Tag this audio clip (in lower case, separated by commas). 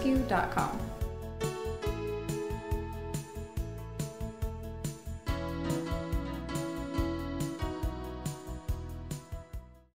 speech, music